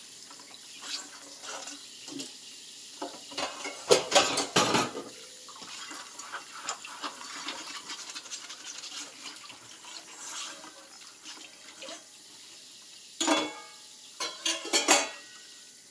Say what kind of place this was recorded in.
kitchen